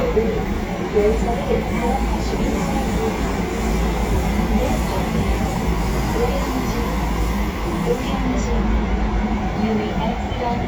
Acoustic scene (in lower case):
subway train